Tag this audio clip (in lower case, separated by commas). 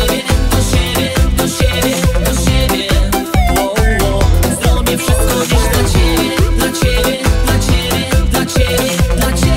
music, disco, dance music